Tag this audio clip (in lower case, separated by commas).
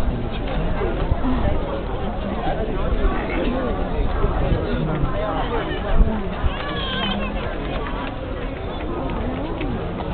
speech